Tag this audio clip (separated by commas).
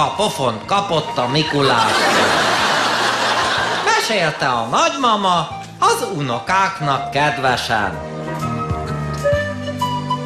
Music, Speech